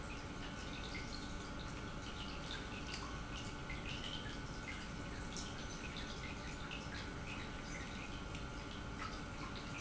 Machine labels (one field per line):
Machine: pump